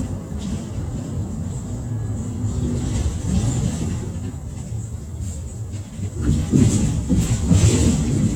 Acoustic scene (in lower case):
bus